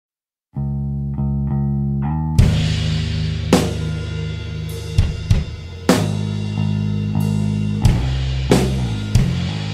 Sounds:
rimshot, drum, percussion, drum kit, snare drum, bass drum

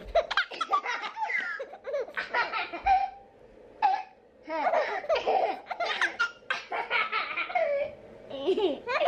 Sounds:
people belly laughing

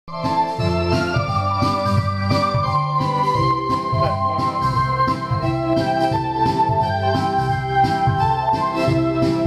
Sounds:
playing electronic organ, organ, electronic organ

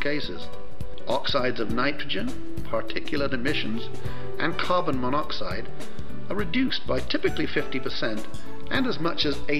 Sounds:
music, speech

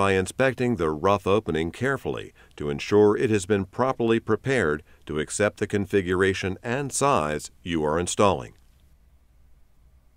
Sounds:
speech

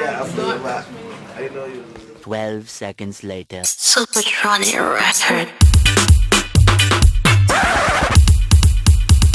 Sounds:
music, speech

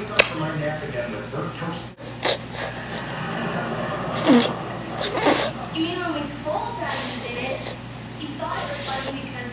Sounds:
speech, sound effect

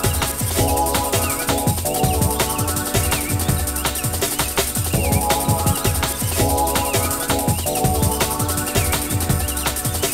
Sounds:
drum, drum kit, rimshot, bass drum, percussion

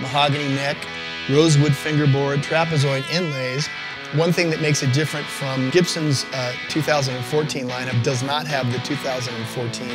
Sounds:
music, speech

